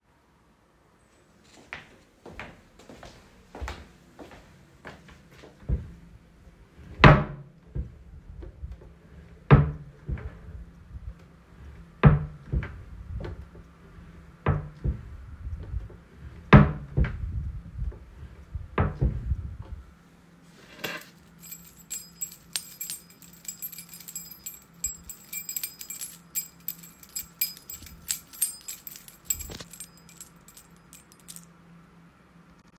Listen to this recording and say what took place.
I started recording while walking across the bedroom, producing clearly audible footsteps. I then stopped at the wardrobe and opened and closed it several times. I then picked up my keys and jangled them clearly close to the device before stopping the recording.